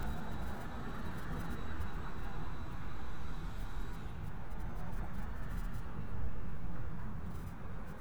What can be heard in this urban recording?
background noise